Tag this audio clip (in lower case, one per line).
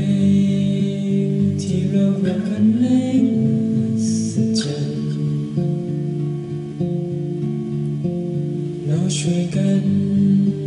music
vocal music